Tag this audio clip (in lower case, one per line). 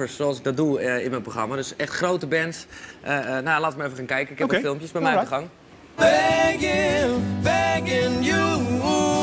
speech
music